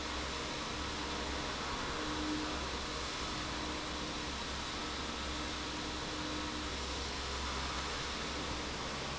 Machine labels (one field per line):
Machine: fan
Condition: normal